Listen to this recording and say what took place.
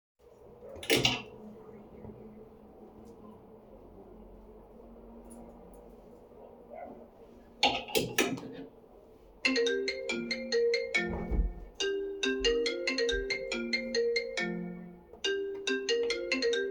I hang up my jacket, the phone rings, I close the closet and go to answer it.